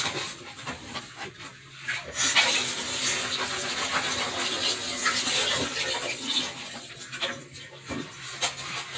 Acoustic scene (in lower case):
kitchen